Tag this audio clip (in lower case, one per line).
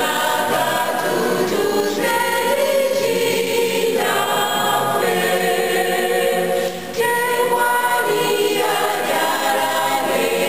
choir
singing
gospel music